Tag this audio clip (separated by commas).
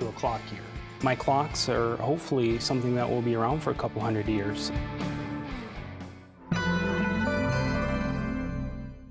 Music, Speech